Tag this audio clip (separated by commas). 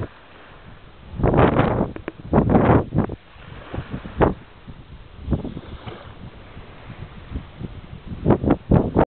Wind noise (microphone), wind noise